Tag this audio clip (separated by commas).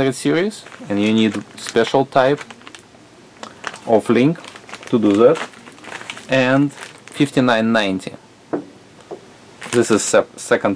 inside a small room, Speech